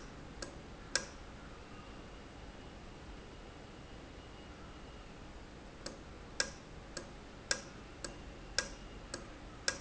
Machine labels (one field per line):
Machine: valve